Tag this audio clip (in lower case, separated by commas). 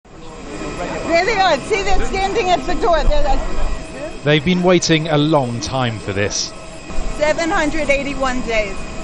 speech, speech noise, outside, urban or man-made